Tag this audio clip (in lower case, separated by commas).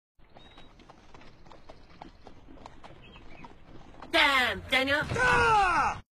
outside, rural or natural, speech